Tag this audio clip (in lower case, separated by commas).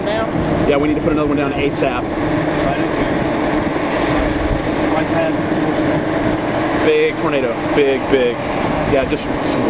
tornado roaring